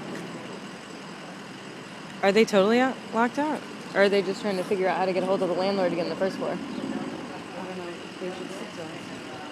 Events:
0.0s-9.5s: medium engine (mid frequency)
0.0s-9.5s: wind
2.2s-9.5s: conversation
2.2s-3.0s: female speech
3.1s-3.6s: female speech
4.0s-6.6s: female speech
7.5s-9.0s: man speaking
9.3s-9.5s: man speaking

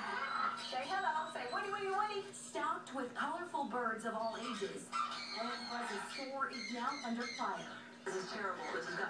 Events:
0.0s-9.0s: background noise
0.0s-9.0s: television
8.1s-9.0s: female speech
8.6s-9.0s: bird vocalization

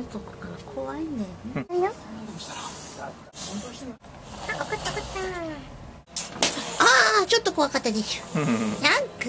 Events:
0.0s-0.6s: female speech
0.0s-9.2s: background noise
0.1s-9.2s: conversation
0.7s-1.3s: female speech
1.4s-1.6s: human voice
1.7s-1.9s: female speech
2.4s-3.1s: whispering
3.3s-3.9s: male speech
4.4s-5.7s: female speech
4.8s-4.9s: generic impact sounds
6.1s-6.2s: generic impact sounds
6.4s-6.5s: generic impact sounds
6.7s-7.2s: groan
7.2s-8.2s: female speech
8.3s-8.8s: laughter

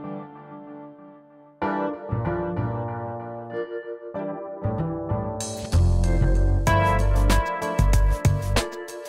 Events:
0.0s-9.0s: music

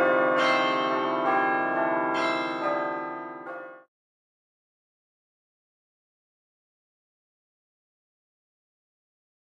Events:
0.0s-3.8s: change ringing (campanology)

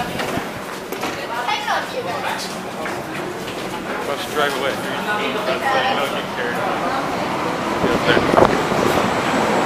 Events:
0.0s-0.4s: female speech
0.0s-9.6s: underground
0.0s-9.6s: wind
0.1s-1.3s: sliding door
1.2s-2.5s: female speech
2.8s-3.3s: man speaking
2.8s-3.2s: generic impact sounds
3.5s-3.8s: generic impact sounds
4.1s-6.6s: man speaking
4.5s-4.8s: generic impact sounds
5.0s-6.2s: speech
6.7s-7.3s: speech
7.8s-8.3s: man speaking
7.8s-9.2s: wind noise (microphone)

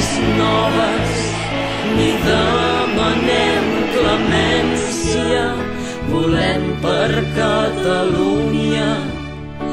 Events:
0.0s-9.7s: music
0.3s-1.8s: man speaking
2.0s-5.6s: man speaking
6.1s-9.1s: man speaking

